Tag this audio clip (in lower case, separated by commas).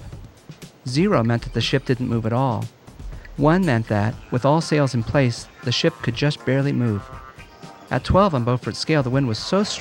speech, music